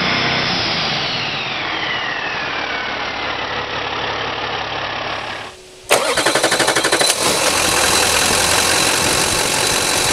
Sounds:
car engine idling

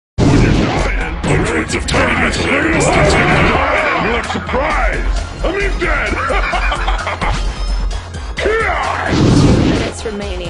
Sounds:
Music, Speech

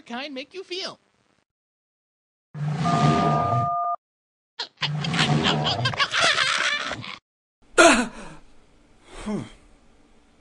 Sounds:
Speech, inside a small room

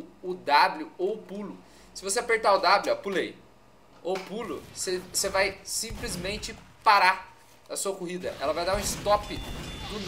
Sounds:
Speech, Music

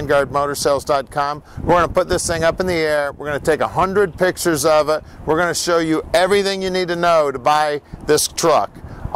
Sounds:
Speech

